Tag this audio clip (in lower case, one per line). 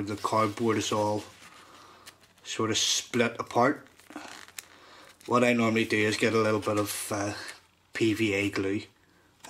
inside a small room
speech